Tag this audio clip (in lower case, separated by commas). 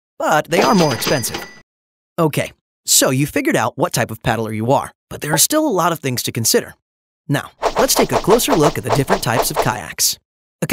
speech